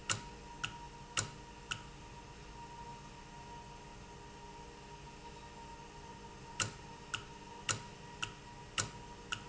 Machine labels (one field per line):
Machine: valve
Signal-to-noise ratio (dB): 6 dB